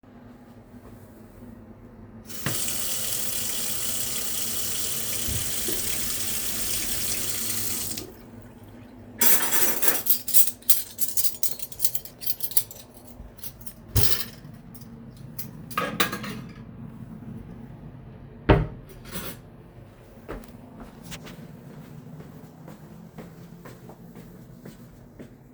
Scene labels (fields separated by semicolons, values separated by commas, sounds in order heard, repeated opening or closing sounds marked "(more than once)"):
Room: kitchen; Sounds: running water, cutlery and dishes, wardrobe or drawer (more than once), footsteps